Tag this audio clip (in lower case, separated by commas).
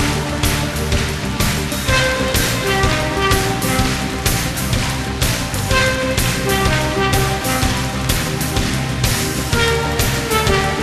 music